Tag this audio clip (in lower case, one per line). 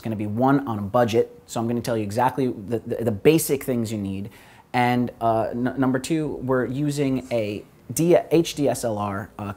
speech